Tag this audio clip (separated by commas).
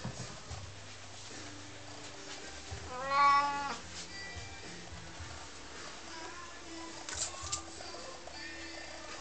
Animal, Domestic animals, Meow, Music, cat meowing, Cat